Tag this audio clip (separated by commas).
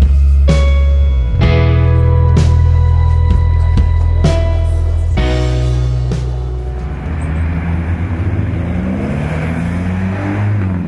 Race car, Music, Speech